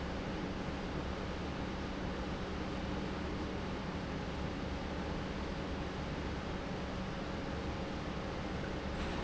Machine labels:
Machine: pump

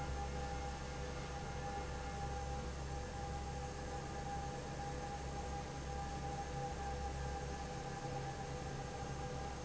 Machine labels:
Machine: fan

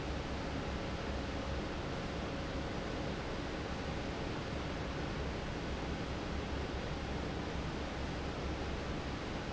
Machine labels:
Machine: fan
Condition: normal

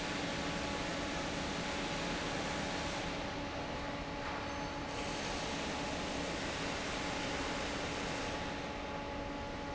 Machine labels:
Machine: fan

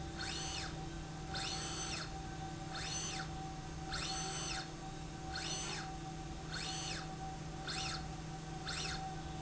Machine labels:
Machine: slide rail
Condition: normal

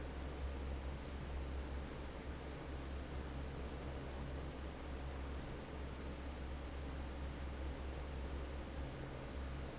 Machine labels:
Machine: fan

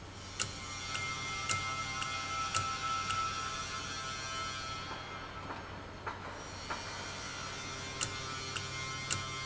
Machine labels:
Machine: valve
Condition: normal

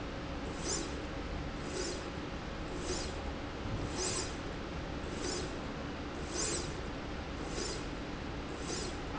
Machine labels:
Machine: slide rail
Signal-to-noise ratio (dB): -6 dB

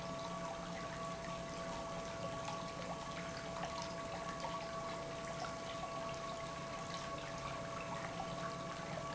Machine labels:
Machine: pump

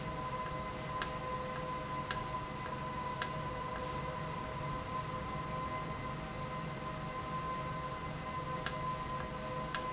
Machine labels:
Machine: valve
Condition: normal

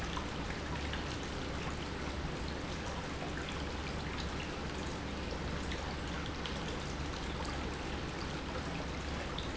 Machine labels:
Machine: pump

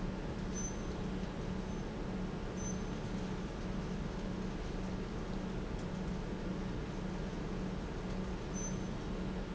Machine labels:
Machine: pump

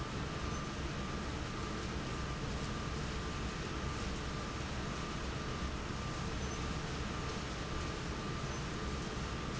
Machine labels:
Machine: fan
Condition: abnormal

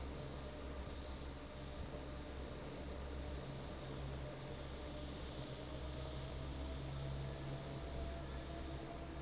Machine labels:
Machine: fan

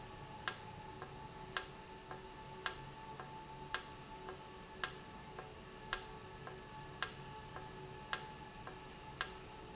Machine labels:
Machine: valve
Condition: normal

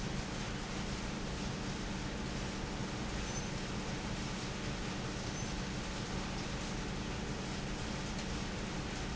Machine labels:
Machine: pump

